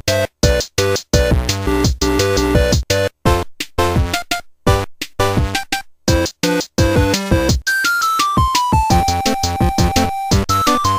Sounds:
music, soundtrack music

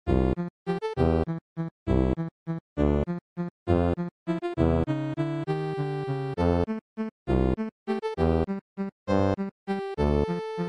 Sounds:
music, soundtrack music

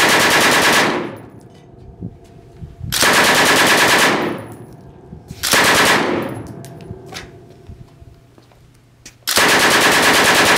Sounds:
machine gun shooting

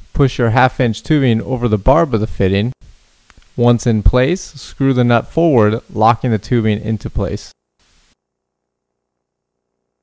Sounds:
speech

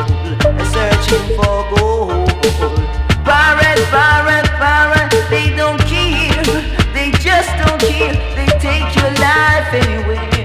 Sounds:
music of bollywood, reggae, music

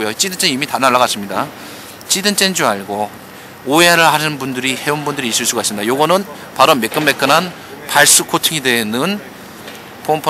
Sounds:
speech

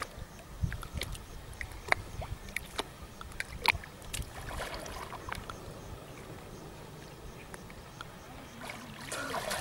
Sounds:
outside, rural or natural

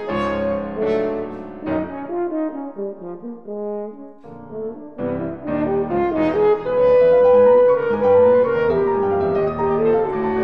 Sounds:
playing french horn

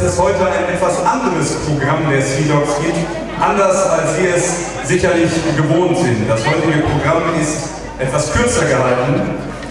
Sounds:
speech

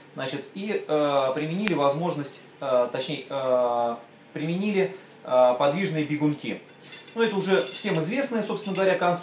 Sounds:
tools, speech

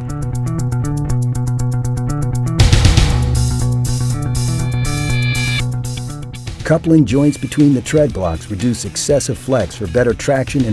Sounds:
speech, music

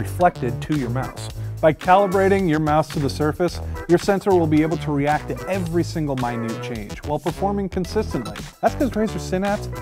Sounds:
music, speech

